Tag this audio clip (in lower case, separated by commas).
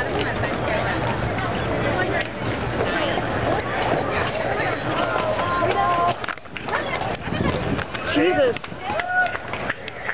speech, clip-clop